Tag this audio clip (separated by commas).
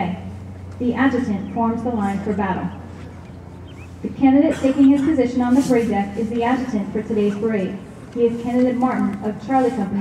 Speech